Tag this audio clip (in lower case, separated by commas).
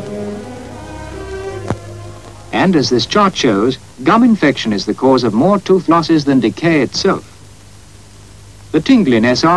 speech, music